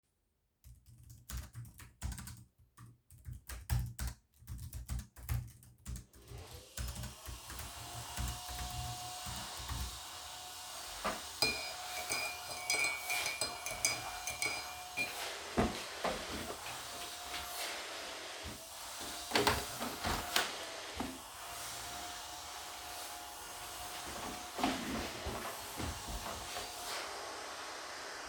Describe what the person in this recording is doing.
I started typing on the keyboard. while i was typying, my friend start the vaccum cleaner. then, I stirred the tea in a mug with a spoon. finally I moved the desk chair aside and opened the window.